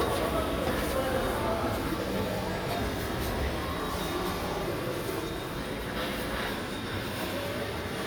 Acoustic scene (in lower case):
subway station